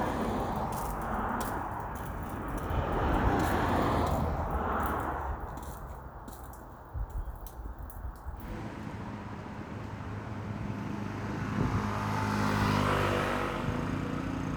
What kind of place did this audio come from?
street